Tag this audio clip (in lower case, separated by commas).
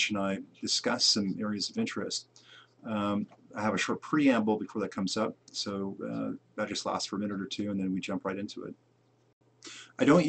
speech